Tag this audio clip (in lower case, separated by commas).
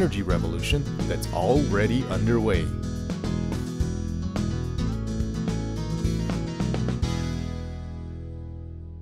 music, speech